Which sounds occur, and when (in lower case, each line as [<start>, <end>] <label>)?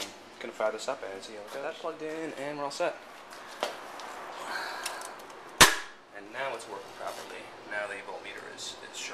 [0.00, 9.13] noise
[0.32, 2.91] male speech
[6.19, 7.39] male speech
[7.58, 9.13] male speech